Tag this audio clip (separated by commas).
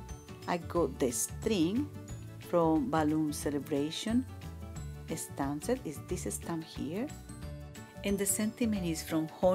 Music, Speech